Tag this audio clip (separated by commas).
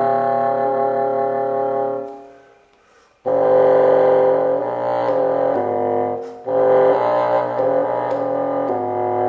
playing bassoon